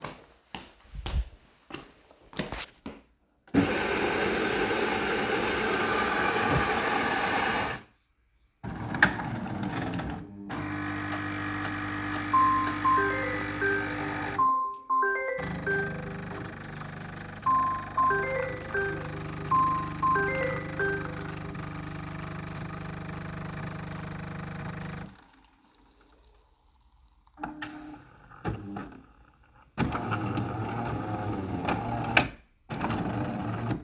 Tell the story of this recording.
I walked in the kitchen while the coffee machine was operating. During this activity, the phone started ringing, creating an overlap with the appliance sound and footsteps.